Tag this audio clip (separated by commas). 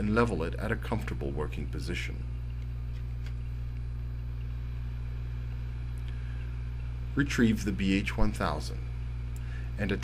Speech